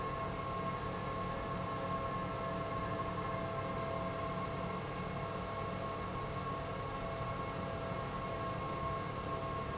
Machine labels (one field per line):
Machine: pump